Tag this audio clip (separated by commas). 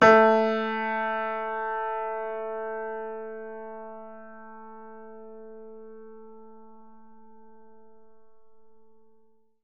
Music, Keyboard (musical), Musical instrument, Piano